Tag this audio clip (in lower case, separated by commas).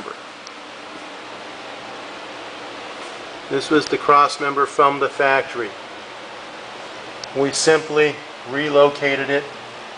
vehicle, engine